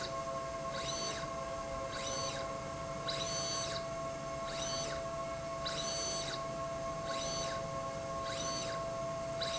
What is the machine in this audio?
slide rail